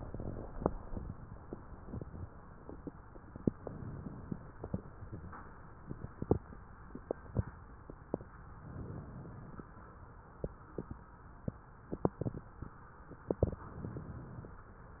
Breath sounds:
3.61-4.50 s: inhalation
8.64-9.63 s: inhalation
13.56-14.55 s: inhalation

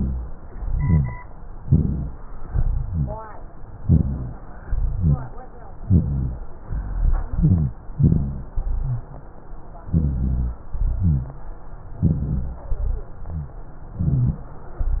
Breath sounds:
0.53-1.16 s: inhalation
0.53-1.16 s: rhonchi
1.59-2.22 s: exhalation
1.59-2.22 s: rhonchi
2.49-3.25 s: inhalation
2.49-3.25 s: rhonchi
3.83-4.50 s: exhalation
3.83-4.50 s: rhonchi
4.65-5.31 s: inhalation
4.65-5.31 s: rhonchi
5.86-6.49 s: exhalation
5.86-6.49 s: rhonchi
6.68-7.31 s: inhalation
6.68-7.31 s: rhonchi
7.32-7.78 s: exhalation
7.32-7.78 s: rhonchi
7.95-8.52 s: inhalation
7.95-8.52 s: rhonchi
8.60-9.17 s: exhalation
8.60-9.17 s: rhonchi
9.92-10.65 s: inhalation
9.92-10.65 s: rhonchi
10.76-11.46 s: exhalation
10.76-11.46 s: rhonchi
11.97-12.68 s: inhalation
11.97-12.68 s: rhonchi
12.75-13.55 s: exhalation
12.75-13.55 s: rhonchi
13.96-14.44 s: inhalation
13.96-14.44 s: rhonchi

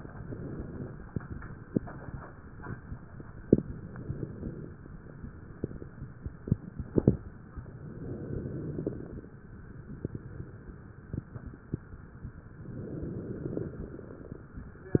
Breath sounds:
0.00-1.10 s: inhalation
3.48-4.72 s: inhalation
7.72-9.39 s: inhalation
12.65-14.52 s: inhalation

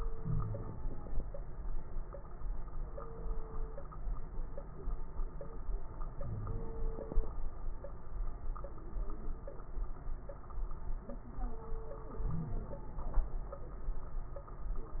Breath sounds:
0.17-0.78 s: wheeze
0.17-1.22 s: inhalation
6.18-6.66 s: wheeze
6.18-6.93 s: inhalation
12.23-12.95 s: inhalation
12.23-12.95 s: crackles

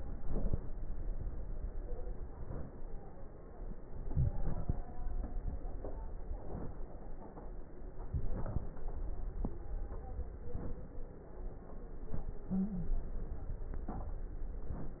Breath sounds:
0.00-0.73 s: inhalation
4.03-4.82 s: inhalation
8.11-8.73 s: inhalation
12.56-12.94 s: stridor

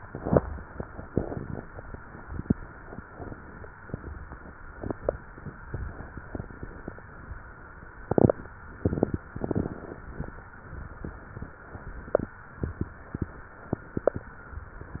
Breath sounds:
3.15-3.93 s: inhalation
9.33-10.33 s: inhalation

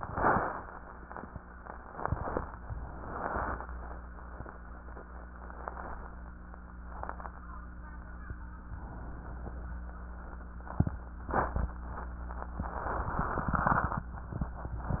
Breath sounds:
8.71-9.71 s: inhalation

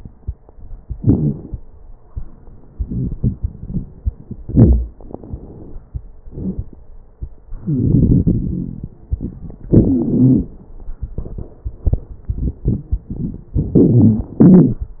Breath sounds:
0.87-1.57 s: inhalation
0.98-1.36 s: wheeze
2.68-4.39 s: crackles
4.42-4.94 s: inhalation
4.42-4.94 s: crackles
4.91-5.76 s: exhalation
6.31-6.66 s: wheeze
7.60-8.94 s: inhalation
7.60-8.94 s: wheeze
9.71-10.50 s: exhalation
9.71-10.50 s: wheeze
13.57-14.36 s: inhalation
13.57-14.36 s: wheeze
14.38-15.00 s: exhalation
14.38-15.00 s: wheeze

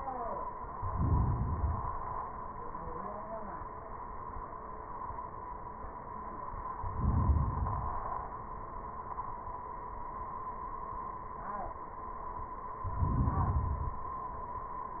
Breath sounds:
0.75-1.56 s: inhalation
1.57-2.38 s: exhalation
6.82-7.59 s: inhalation
7.57-8.34 s: exhalation
12.91-13.68 s: inhalation
13.69-14.55 s: exhalation

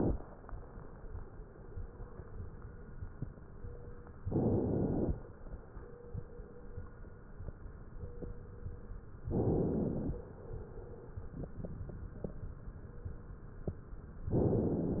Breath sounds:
4.21-5.16 s: inhalation
9.30-10.25 s: inhalation
14.32-15.00 s: inhalation

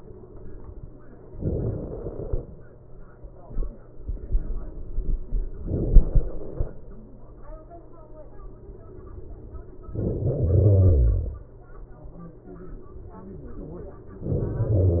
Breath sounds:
1.39-2.34 s: inhalation
9.90-10.60 s: inhalation
10.60-11.90 s: exhalation

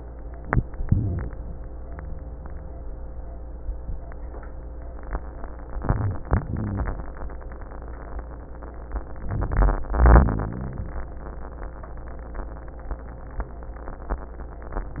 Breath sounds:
0.80-1.33 s: rhonchi
0.80-1.37 s: inhalation
5.75-6.32 s: inhalation
5.77-6.30 s: rhonchi
6.41-7.06 s: exhalation
6.41-7.06 s: rhonchi
9.24-9.89 s: inhalation
9.92-10.93 s: exhalation
10.02-10.82 s: rhonchi

